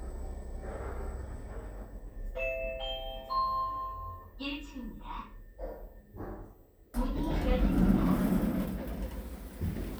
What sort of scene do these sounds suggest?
elevator